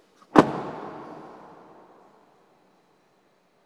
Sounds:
motor vehicle (road), car, vehicle

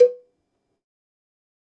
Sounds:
cowbell, bell

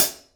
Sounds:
hi-hat, percussion, musical instrument, music, cymbal

